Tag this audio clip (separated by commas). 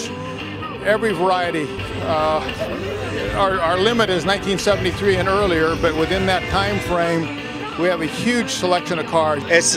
Music, Speech